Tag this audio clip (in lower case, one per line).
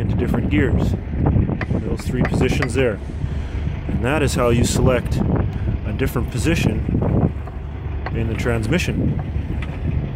speech